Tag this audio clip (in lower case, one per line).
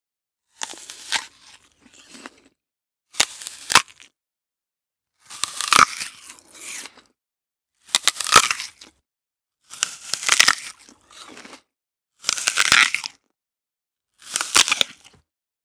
chewing